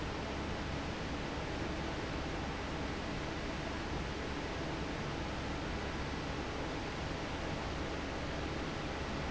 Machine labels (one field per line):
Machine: fan